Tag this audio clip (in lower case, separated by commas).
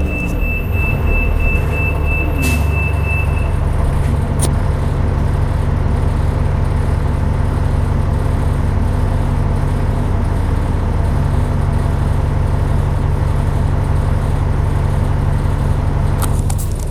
motor vehicle (road), vehicle, bus